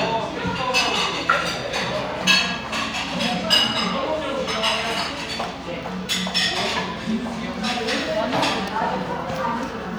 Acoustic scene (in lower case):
cafe